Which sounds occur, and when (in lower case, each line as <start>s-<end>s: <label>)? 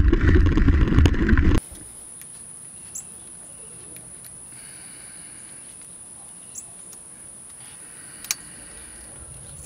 0.0s-1.6s: bicycle
1.6s-9.6s: wind
1.7s-1.9s: generic impact sounds
2.1s-2.5s: generic impact sounds
2.8s-3.1s: chirp
3.9s-4.0s: generic impact sounds
4.2s-4.4s: generic impact sounds
4.4s-5.9s: breathing
5.7s-5.9s: generic impact sounds
6.4s-6.7s: chirp
6.8s-7.0s: generic impact sounds
7.4s-7.5s: generic impact sounds
7.5s-9.5s: breathing
8.1s-8.4s: generic impact sounds